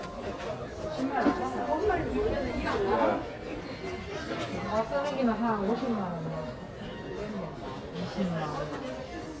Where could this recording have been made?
in a crowded indoor space